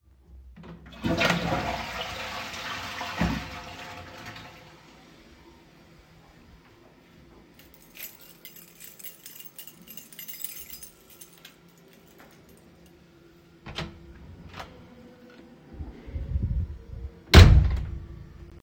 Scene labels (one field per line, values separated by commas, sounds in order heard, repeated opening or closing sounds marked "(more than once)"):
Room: bathroom, hallway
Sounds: toilet flushing, keys, door (more than once)